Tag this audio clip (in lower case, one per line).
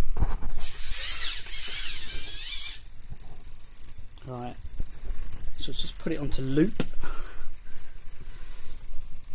inside a small room
speech